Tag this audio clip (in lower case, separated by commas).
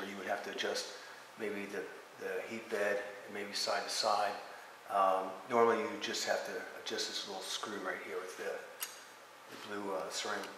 speech